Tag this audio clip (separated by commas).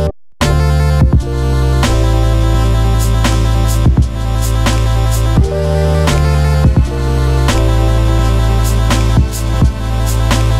Video game music, Music